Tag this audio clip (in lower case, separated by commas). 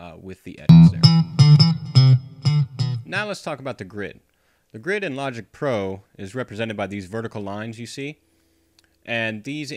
bass guitar